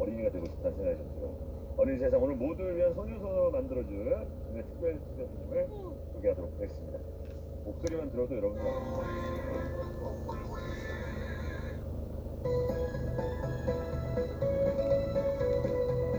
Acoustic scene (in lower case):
car